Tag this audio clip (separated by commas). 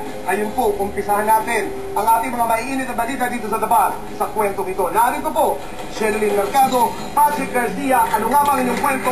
Speech